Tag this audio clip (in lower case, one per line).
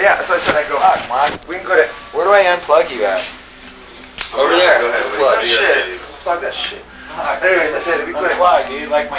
speech